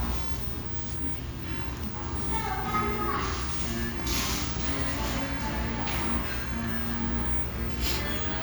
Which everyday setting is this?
restaurant